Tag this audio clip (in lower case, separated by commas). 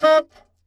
musical instrument, music, wind instrument